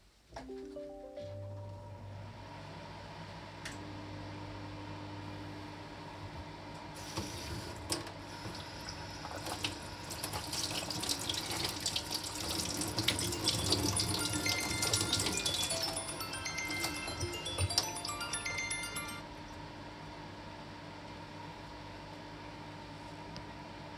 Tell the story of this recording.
There is a phone notification, I then started the microwave, after that turned on the sink, then a phone rang and I turned off the sink.